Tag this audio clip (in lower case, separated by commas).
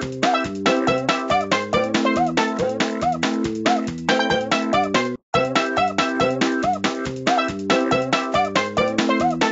music